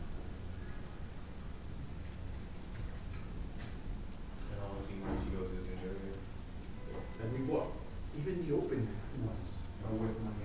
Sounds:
Speech

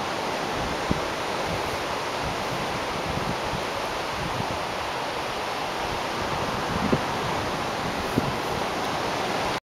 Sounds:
wind rustling leaves, Wind noise (microphone), Rustling leaves

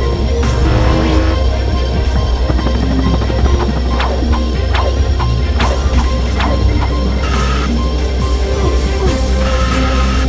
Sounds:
Mechanisms

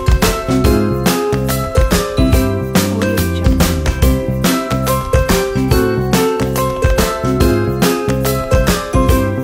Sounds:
Music, Funny music

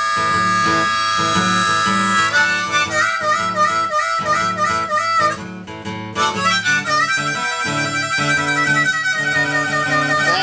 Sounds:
playing harmonica

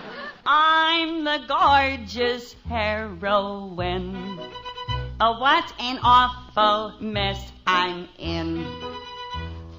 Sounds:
Music

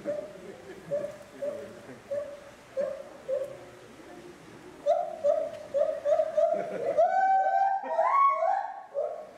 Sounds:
gibbon howling

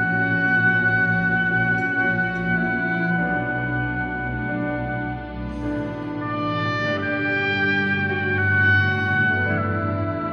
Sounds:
Music, Orchestra, Classical music, Musical instrument, inside a large room or hall

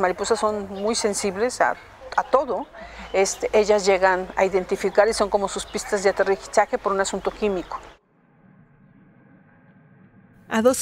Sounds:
Speech

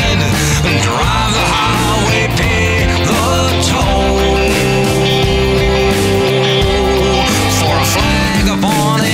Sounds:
Rock music, Music

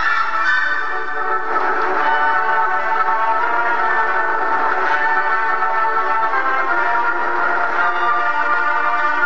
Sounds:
Music, outside, rural or natural

